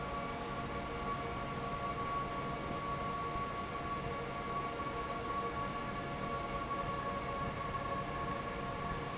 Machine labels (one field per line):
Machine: fan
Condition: normal